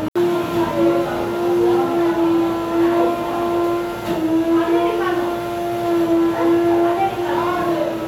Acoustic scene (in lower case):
cafe